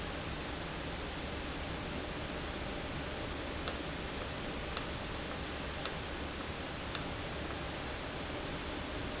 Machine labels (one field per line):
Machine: valve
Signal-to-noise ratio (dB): -6 dB